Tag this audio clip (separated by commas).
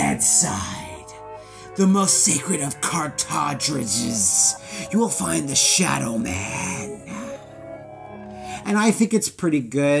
Male speech, Speech, Music